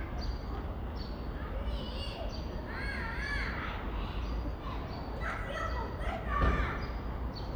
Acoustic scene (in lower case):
residential area